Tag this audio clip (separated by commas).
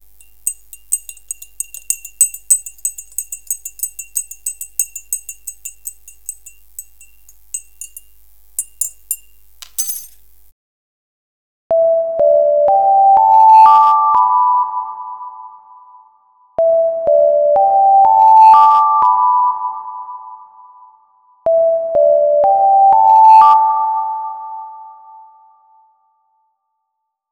Alarm